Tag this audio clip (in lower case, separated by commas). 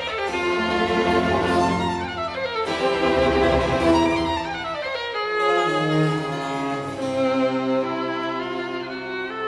cello, string section